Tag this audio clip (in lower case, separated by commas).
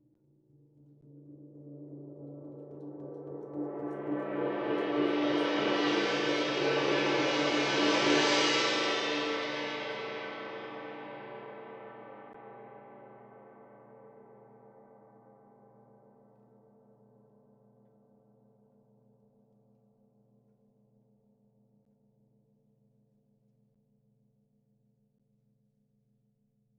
gong, music, musical instrument, percussion